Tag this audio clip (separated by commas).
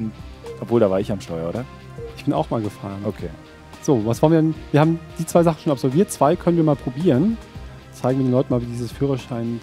Music, Speech